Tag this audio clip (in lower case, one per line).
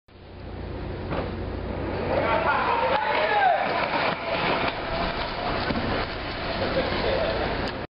speech